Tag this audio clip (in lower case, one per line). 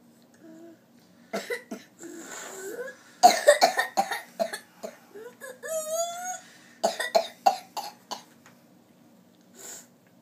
people coughing